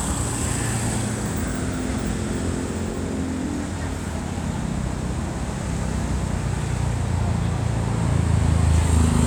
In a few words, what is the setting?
street